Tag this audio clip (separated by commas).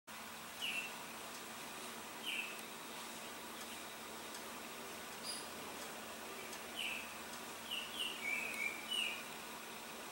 baltimore oriole calling